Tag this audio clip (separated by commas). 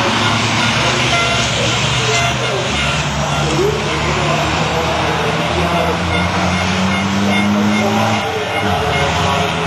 Reversing beeps, Vehicle, Truck, Speech